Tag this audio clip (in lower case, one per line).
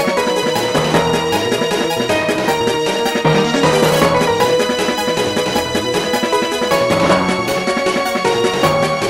music